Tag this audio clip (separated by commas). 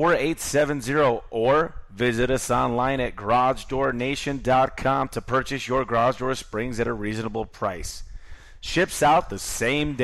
Speech